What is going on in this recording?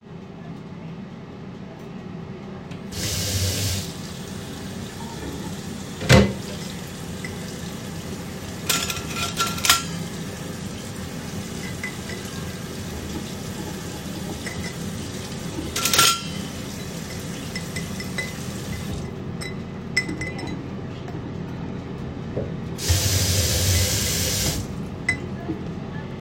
I turned on the sink tap. While the water was running, I cleaned the dishes in the sink.